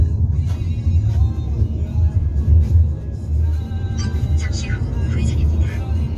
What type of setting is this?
car